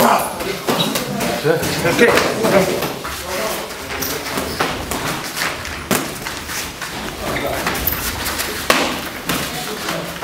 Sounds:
thump, speech

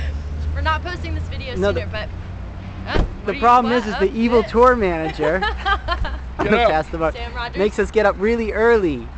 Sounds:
speech

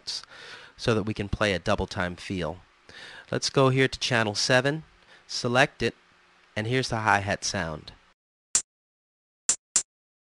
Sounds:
speech, music

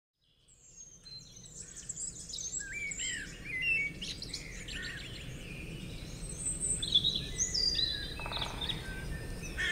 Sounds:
outside, rural or natural, bird call

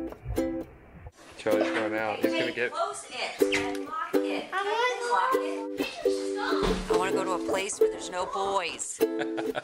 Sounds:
speech, music

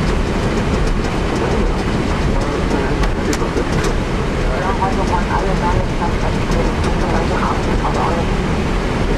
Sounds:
vehicle, speech

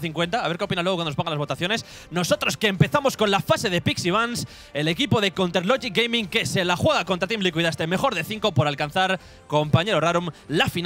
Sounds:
speech, music

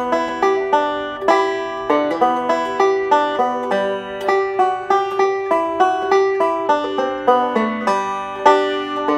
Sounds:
playing banjo

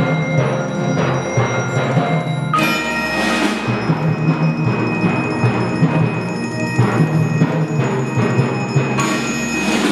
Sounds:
percussion, music, tubular bells

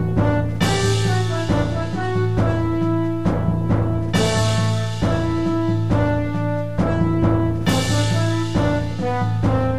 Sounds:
music, tender music

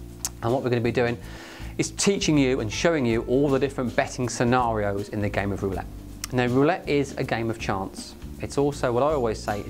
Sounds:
speech, music

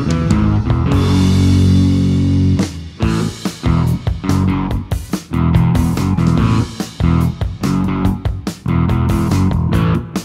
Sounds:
electric guitar, guitar, musical instrument, music, plucked string instrument, strum

